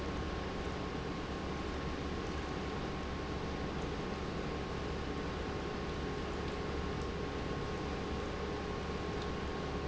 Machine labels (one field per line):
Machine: pump